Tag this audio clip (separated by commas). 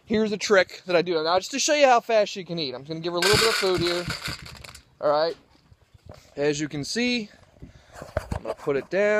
Speech